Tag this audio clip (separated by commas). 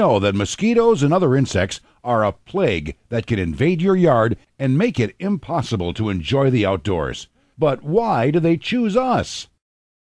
Speech